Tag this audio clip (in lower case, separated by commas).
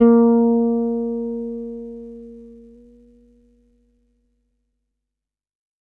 musical instrument, music, bass guitar, plucked string instrument, guitar